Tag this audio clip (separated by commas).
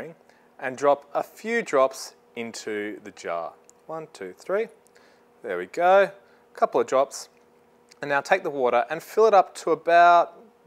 Speech